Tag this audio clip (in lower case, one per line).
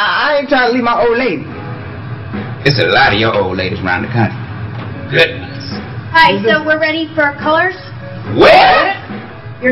speech
music